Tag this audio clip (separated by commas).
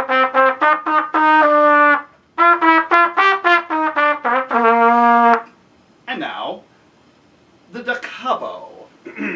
playing cornet